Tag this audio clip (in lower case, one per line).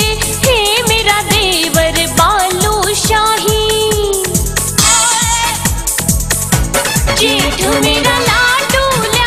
song
music